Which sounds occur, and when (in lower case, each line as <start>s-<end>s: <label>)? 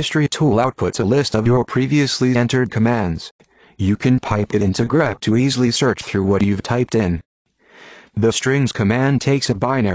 0.0s-3.3s: man speaking
0.0s-3.3s: background noise
3.4s-3.8s: breathing
3.4s-7.2s: background noise
3.7s-7.3s: man speaking
7.5s-9.9s: background noise
7.6s-8.2s: breathing
8.1s-9.9s: man speaking